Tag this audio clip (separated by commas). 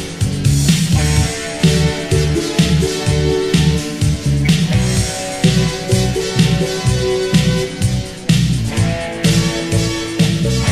Music